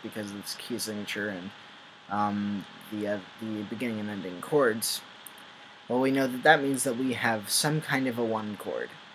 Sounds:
Speech

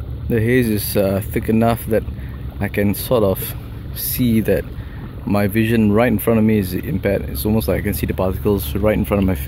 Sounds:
Boat, Speech

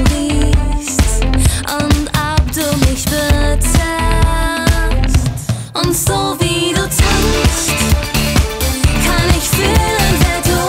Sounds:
Soul music, Music

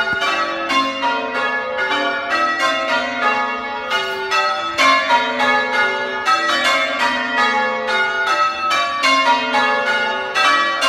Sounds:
church bell ringing

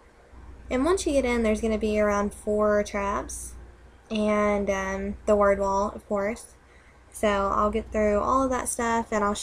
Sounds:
Speech

